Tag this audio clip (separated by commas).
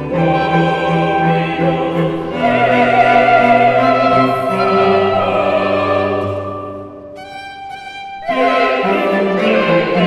Music, fiddle, Bowed string instrument, Cello, Opera, Musical instrument